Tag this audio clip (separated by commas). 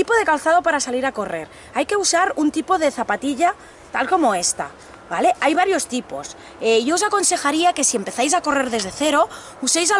Speech